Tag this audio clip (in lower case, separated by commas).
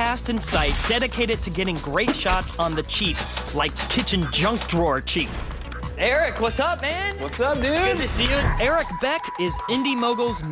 music, speech